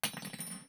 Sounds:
silverware, home sounds

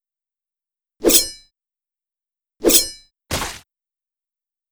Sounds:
swish

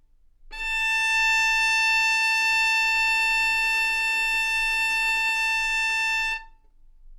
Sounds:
music, musical instrument, bowed string instrument

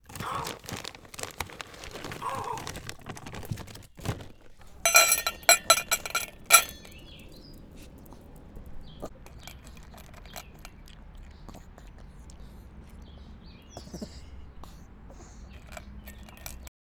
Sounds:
animal, domestic animals, dog

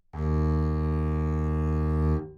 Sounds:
music, bowed string instrument, musical instrument

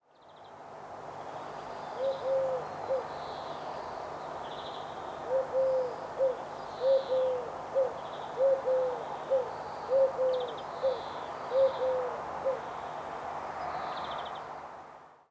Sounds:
wild animals, bird, animal

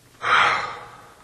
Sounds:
sigh, human voice

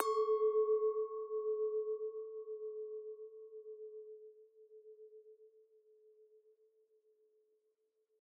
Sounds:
clink, glass

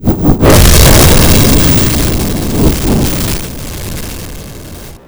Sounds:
explosion, fire

